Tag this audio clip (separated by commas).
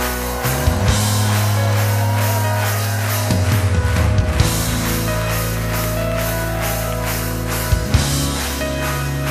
Music